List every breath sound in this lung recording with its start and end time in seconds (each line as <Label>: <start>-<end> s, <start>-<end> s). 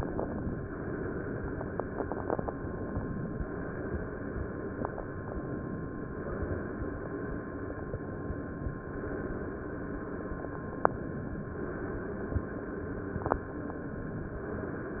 Inhalation: 0.00-0.71 s, 2.48-3.37 s, 5.13-6.15 s, 7.87-8.79 s, 10.91-11.57 s, 13.52-14.52 s
Exhalation: 0.76-2.43 s, 3.42-5.01 s, 6.17-7.76 s, 8.85-10.84 s, 11.60-13.41 s, 14.54-15.00 s